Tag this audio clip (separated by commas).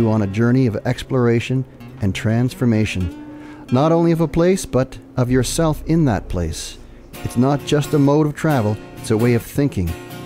Music, Speech